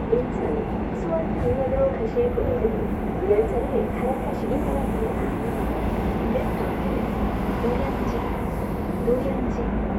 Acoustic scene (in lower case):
subway train